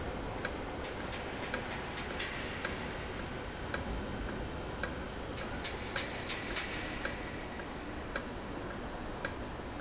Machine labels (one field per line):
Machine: valve